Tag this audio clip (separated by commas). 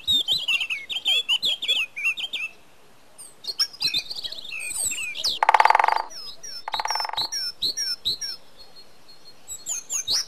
Animal